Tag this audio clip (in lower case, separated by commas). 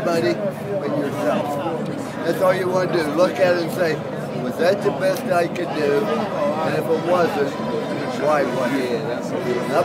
monologue, male speech, speech